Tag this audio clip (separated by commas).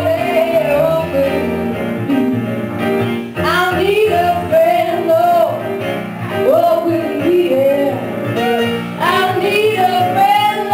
Music